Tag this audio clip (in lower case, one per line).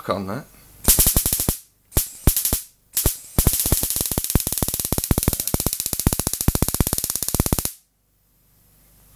speech
inside a small room